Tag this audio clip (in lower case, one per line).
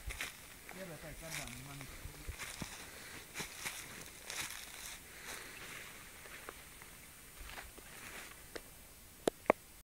speech